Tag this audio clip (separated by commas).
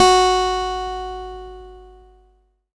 Guitar, Music, Plucked string instrument, Musical instrument, Acoustic guitar